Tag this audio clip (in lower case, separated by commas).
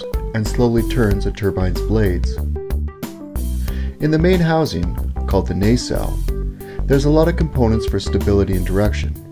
music, speech